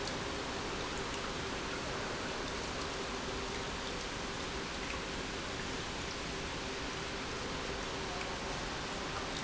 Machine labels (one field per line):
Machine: pump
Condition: normal